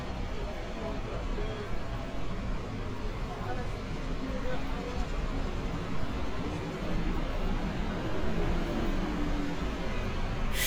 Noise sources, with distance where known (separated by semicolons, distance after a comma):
unidentified human voice